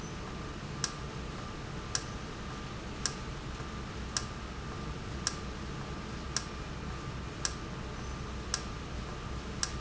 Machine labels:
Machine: valve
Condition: normal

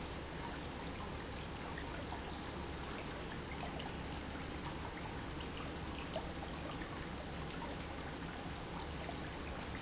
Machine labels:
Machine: pump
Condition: normal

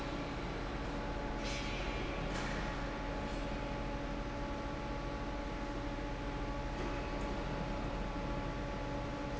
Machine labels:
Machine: fan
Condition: normal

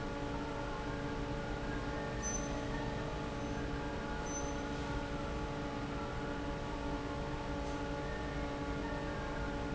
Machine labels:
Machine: fan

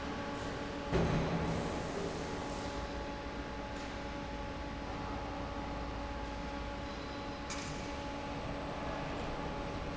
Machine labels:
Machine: fan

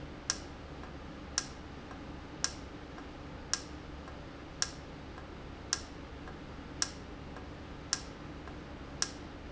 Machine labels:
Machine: valve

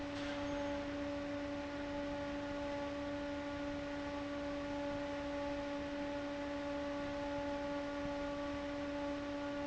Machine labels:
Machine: fan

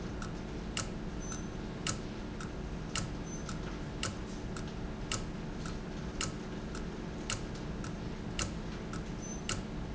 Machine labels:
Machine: valve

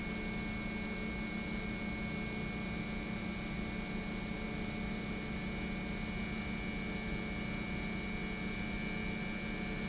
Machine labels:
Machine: pump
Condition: normal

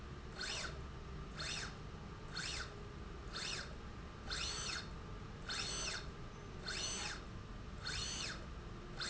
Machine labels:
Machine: slide rail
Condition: normal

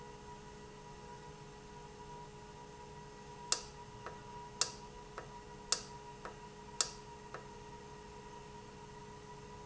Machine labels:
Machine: valve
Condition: normal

